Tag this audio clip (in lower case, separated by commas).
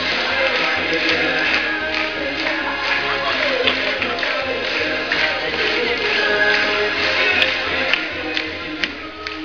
rock and roll, music